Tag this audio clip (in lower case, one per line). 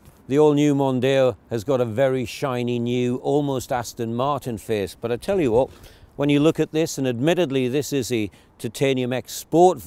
speech